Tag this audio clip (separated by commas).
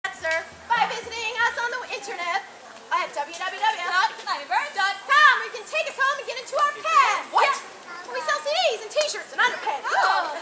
kid speaking, Speech, outside, rural or natural